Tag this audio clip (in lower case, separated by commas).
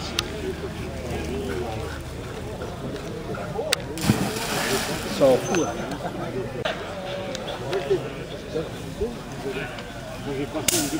pets, speech, animal